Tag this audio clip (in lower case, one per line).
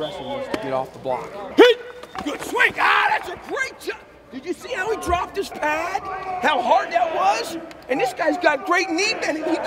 speech
footsteps